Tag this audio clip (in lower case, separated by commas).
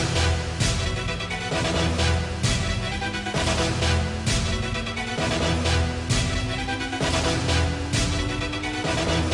music